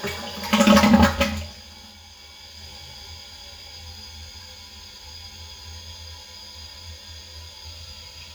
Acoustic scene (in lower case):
restroom